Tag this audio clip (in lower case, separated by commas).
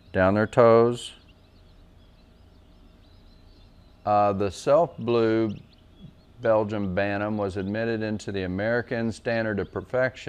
speech